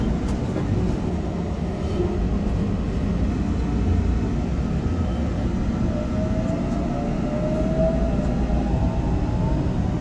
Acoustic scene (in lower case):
subway train